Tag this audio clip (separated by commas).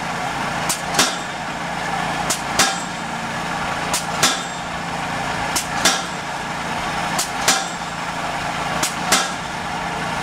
Water vehicle